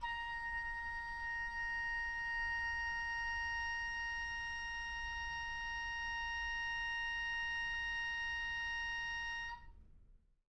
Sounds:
music, wind instrument, musical instrument

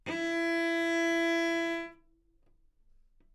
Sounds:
bowed string instrument, musical instrument, music

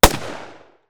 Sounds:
gunshot, explosion

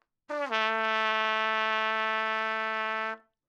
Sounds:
trumpet, music, musical instrument, brass instrument

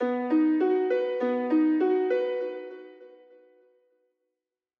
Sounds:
piano, keyboard (musical), music, musical instrument

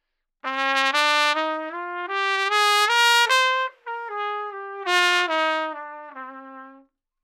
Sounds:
musical instrument, brass instrument, music, trumpet

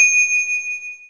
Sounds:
bell, ringtone, alarm, telephone

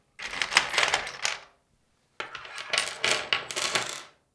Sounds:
tools

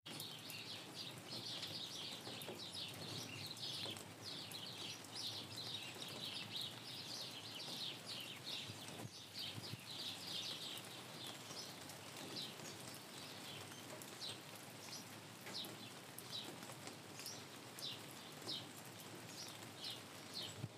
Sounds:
water, rain

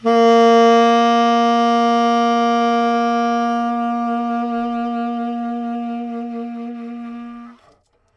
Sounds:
music, woodwind instrument, musical instrument

